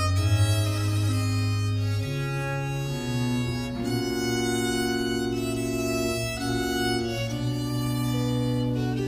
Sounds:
music, musical instrument, violin

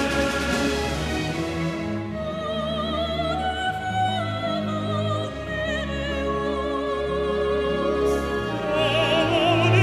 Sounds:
music

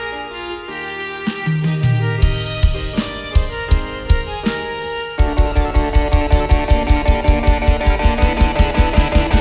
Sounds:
drum roll, musical instrument, music, drum, rimshot, drum kit

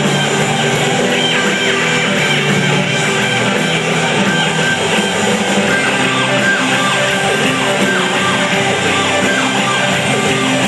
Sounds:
inside a large room or hall, music

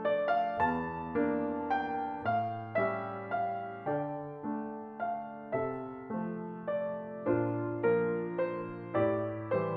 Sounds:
music

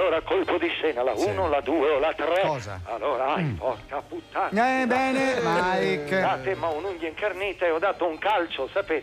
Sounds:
speech, music

